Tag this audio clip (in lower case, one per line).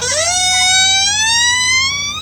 squeak